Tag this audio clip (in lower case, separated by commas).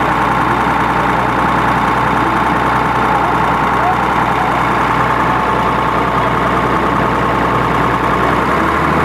speech